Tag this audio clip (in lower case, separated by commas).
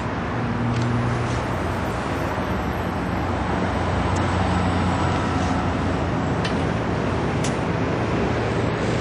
vehicle, car